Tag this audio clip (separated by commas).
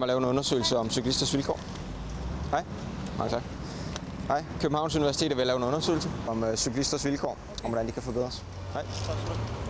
Bicycle, Speech, Vehicle